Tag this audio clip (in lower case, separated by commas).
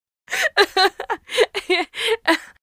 chuckle, human voice, laughter